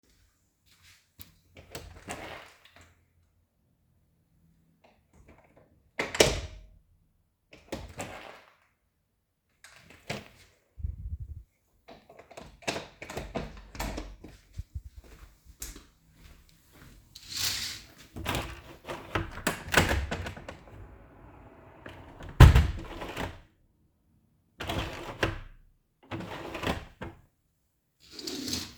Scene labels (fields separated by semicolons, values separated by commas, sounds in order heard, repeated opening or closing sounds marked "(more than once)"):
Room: office; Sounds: door (more than once), footsteps, window (more than once)